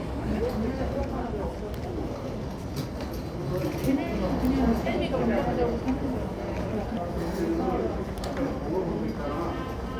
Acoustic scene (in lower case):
subway station